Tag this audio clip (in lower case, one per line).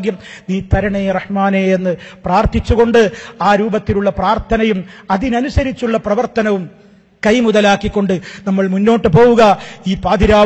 narration
male speech
speech